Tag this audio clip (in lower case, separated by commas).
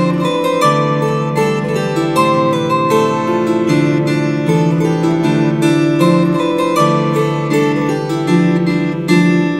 playing harp, plucked string instrument, musical instrument, music, harp